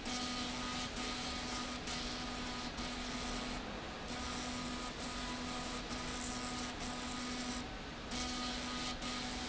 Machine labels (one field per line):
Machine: slide rail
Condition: abnormal